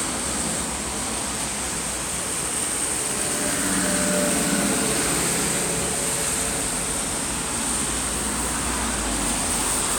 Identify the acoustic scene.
street